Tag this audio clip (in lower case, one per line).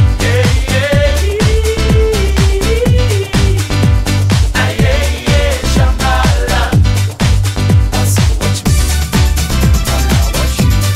music
disco